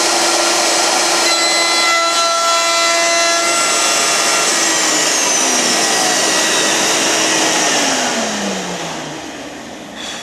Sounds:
inside a large room or hall

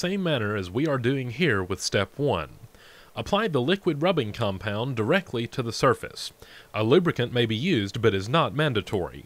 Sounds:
Speech

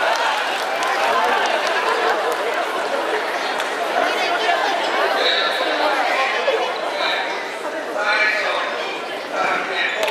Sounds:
Speech

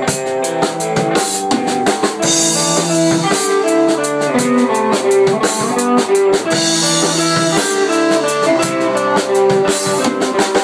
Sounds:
Music

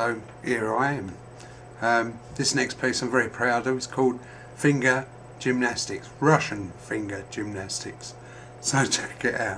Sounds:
Speech

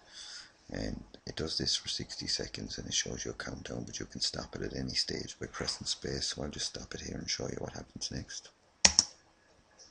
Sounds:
Speech, inside a small room

